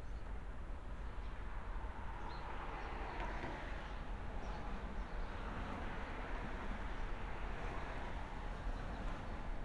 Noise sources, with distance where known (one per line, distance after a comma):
engine of unclear size, far